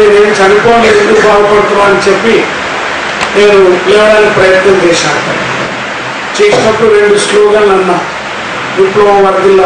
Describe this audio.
A monologue male speech speaking through a microphone with audio frequency and distortion